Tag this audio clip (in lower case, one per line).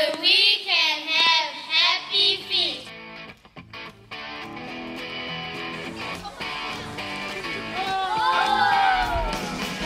speech
outside, rural or natural
music